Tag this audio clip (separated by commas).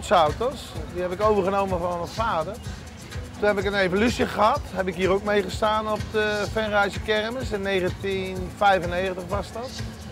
Speech, Music